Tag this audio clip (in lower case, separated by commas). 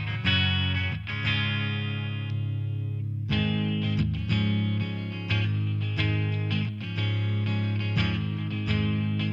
electric guitar, musical instrument, strum, music, plucked string instrument, guitar